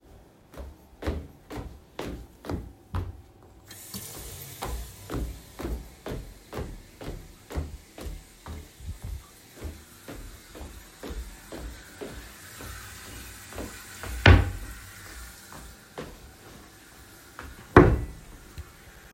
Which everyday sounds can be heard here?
footsteps, running water, wardrobe or drawer